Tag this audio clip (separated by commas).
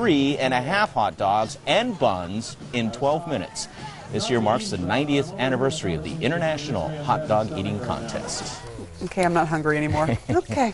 Speech